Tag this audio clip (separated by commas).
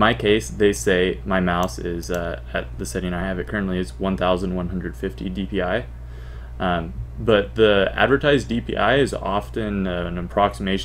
Speech, Mouse